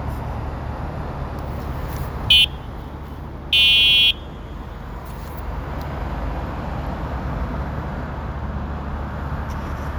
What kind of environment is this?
street